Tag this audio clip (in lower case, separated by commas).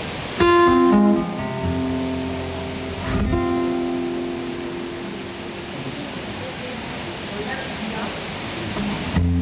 speech, music